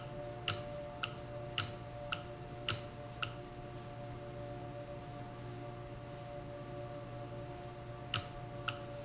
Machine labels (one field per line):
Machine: valve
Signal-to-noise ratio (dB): 0 dB